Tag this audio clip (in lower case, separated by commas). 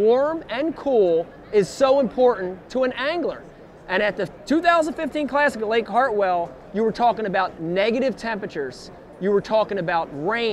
speech